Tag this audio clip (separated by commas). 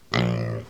Animal, livestock